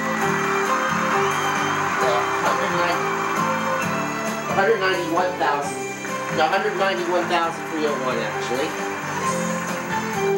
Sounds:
Speech, Music

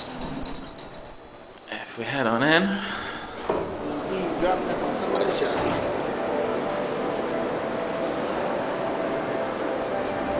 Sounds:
Music, Speech

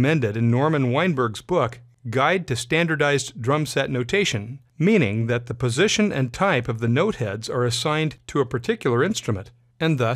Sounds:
Speech

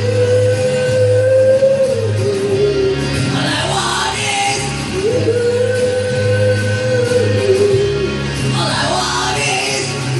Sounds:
Vocal music

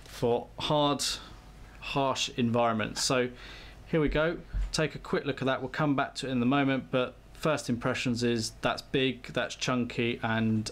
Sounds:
Speech

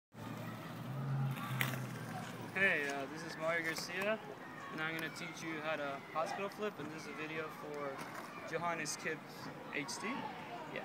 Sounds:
Skateboard, Speech

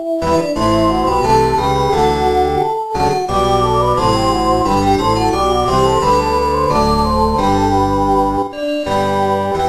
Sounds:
Music, Soundtrack music

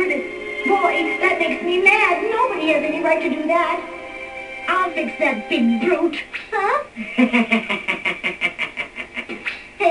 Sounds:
Speech, Music

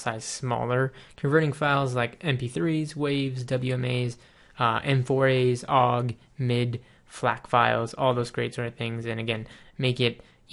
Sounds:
Speech

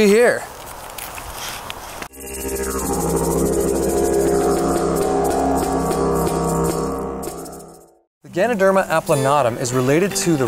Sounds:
Music, Speech

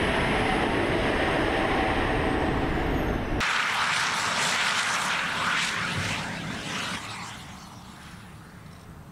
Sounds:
airplane flyby

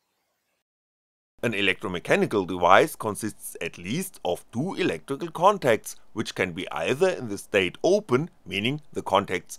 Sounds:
Speech

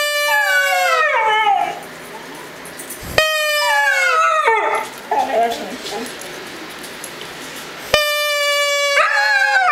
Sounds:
dog howling

